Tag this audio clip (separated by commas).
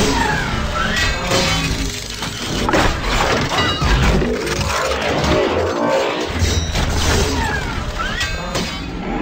outside, urban or man-made